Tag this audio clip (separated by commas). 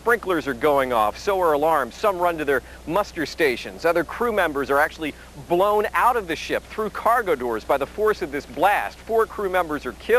Speech